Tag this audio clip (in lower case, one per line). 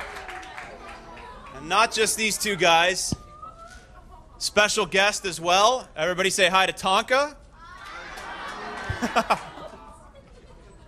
speech